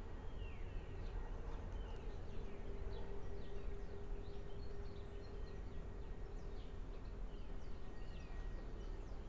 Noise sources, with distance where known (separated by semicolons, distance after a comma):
background noise